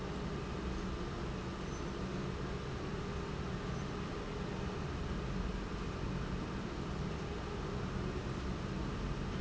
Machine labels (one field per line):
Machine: pump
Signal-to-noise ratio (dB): -6 dB